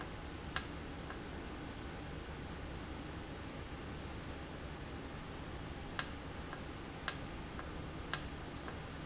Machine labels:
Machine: valve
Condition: normal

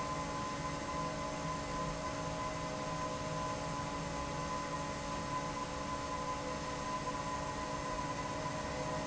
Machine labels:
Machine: fan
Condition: normal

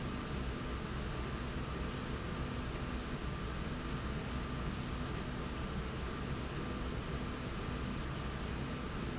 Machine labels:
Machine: slide rail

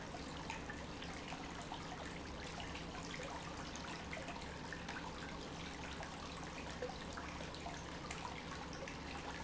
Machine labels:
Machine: pump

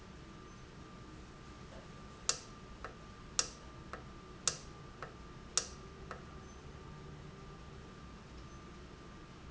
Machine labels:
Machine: valve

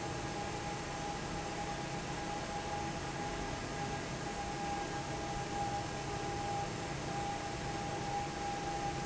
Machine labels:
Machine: fan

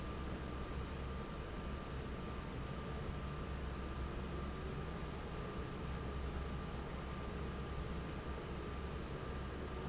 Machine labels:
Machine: fan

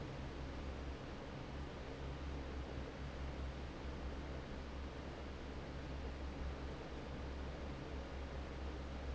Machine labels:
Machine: fan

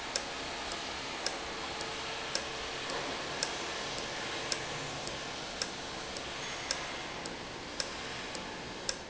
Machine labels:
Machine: valve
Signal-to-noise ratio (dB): -6 dB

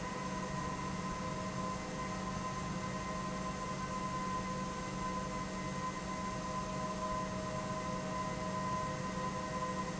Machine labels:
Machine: pump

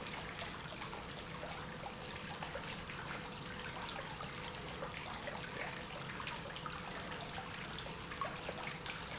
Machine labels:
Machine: pump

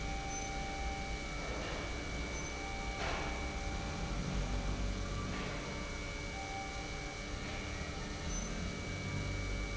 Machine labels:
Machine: pump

